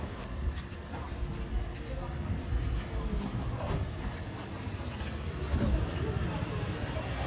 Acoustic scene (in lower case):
residential area